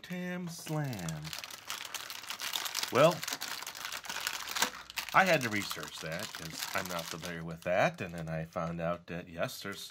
Man speaking over a distinct crinkling sound